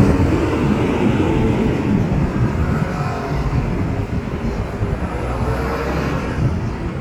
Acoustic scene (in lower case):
street